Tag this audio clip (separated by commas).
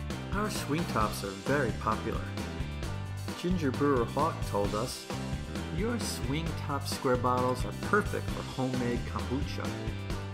Speech, Music